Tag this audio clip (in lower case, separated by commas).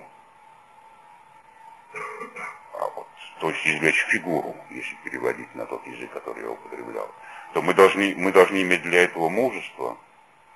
speech